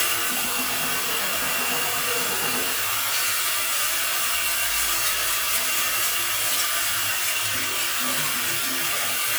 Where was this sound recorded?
in a restroom